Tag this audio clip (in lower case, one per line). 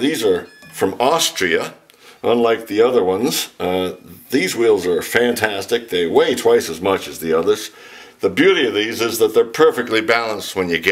speech